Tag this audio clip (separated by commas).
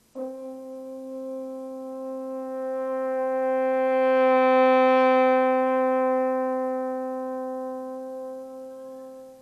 playing french horn